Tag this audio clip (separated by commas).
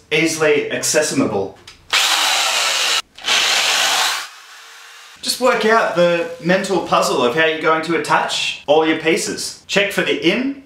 Speech